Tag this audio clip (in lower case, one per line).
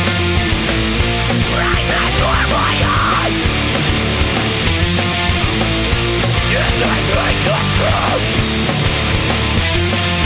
music